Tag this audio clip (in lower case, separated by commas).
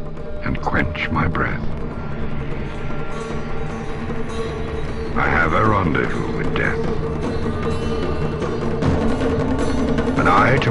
music, speech